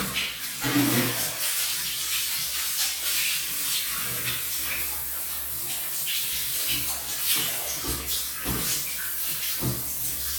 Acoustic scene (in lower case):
restroom